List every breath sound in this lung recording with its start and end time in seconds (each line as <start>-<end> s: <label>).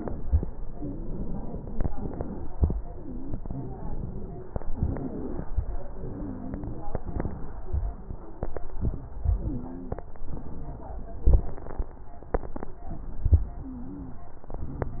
0.00-0.39 s: crackles
0.00-0.41 s: exhalation
0.72-1.87 s: inhalation
0.77-1.76 s: wheeze
1.91-2.54 s: exhalation
1.91-2.54 s: wheeze
2.95-4.42 s: inhalation
2.95-4.42 s: wheeze
4.74-5.46 s: exhalation
4.74-5.46 s: wheeze
5.96-6.88 s: inhalation
5.96-6.88 s: wheeze
7.09-7.74 s: exhalation
7.09-7.74 s: crackles
9.06-10.03 s: inhalation
9.20-9.96 s: wheeze
10.33-11.91 s: crackles
10.33-11.92 s: exhalation
13.43-14.40 s: inhalation
13.52-14.23 s: wheeze
14.52-15.00 s: exhalation
14.52-15.00 s: crackles